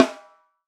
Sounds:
drum
music
snare drum
percussion
musical instrument

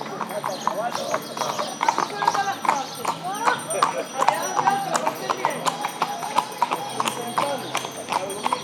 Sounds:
livestock
animal

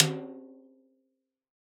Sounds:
music
percussion
snare drum
musical instrument
drum

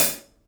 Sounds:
percussion
cymbal
hi-hat
musical instrument
music

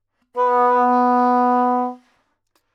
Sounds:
wind instrument
music
musical instrument

